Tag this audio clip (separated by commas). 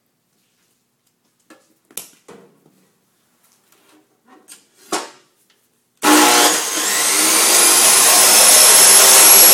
Sawing